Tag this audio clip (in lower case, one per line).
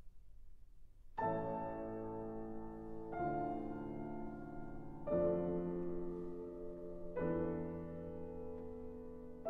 musical instrument
music